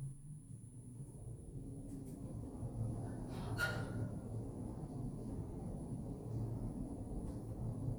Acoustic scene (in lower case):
elevator